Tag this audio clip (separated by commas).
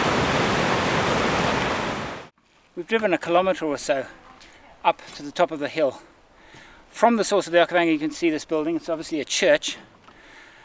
Stream